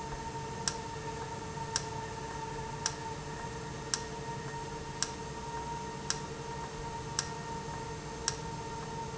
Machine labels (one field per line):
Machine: valve